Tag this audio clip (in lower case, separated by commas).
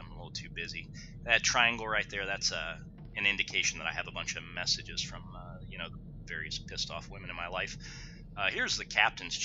speech